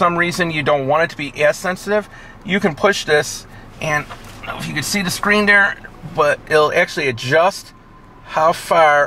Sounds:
vehicle
car
speech

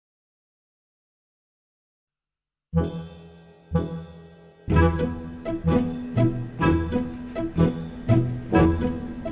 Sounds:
music

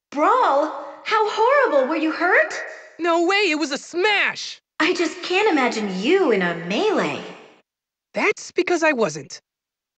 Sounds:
speech

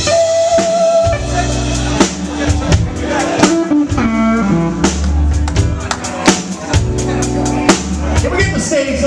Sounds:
speech
music

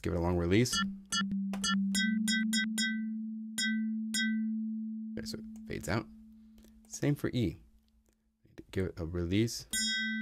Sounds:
speech
music
synthesizer

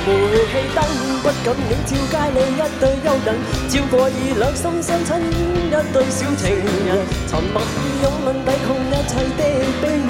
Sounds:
music

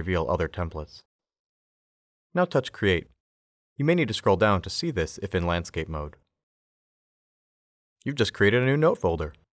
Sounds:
speech

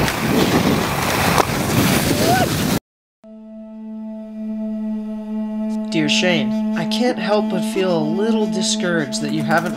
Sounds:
outside, urban or man-made
speech
music

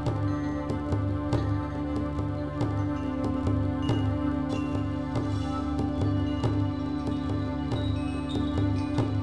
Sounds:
music
tender music

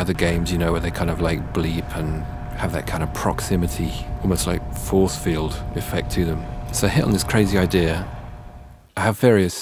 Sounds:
speech

